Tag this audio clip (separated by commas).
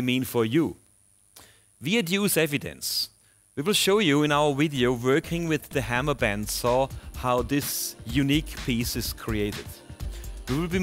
Music, Speech